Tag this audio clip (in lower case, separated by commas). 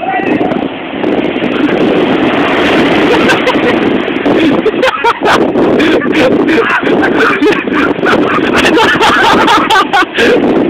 vehicle, speech